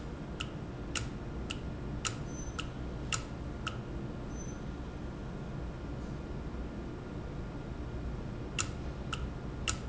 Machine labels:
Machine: valve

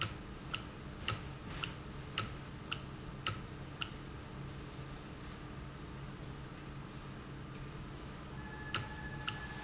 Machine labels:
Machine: valve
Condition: normal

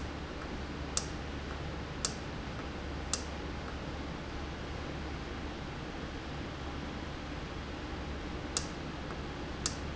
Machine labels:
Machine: valve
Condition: normal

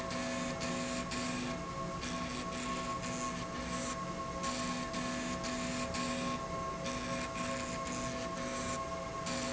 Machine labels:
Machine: slide rail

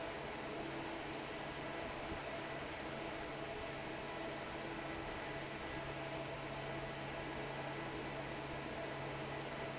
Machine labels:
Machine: fan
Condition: normal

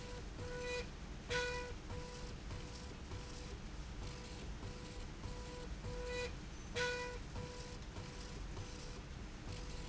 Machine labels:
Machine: slide rail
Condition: normal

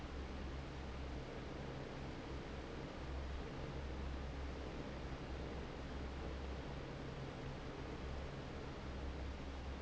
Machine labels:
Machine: fan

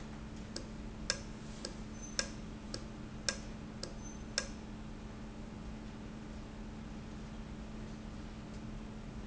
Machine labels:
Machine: valve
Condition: normal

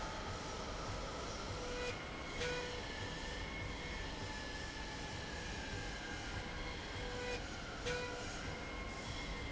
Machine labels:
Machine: slide rail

